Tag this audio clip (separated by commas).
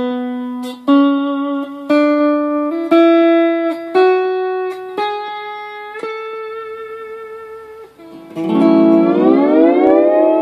slide guitar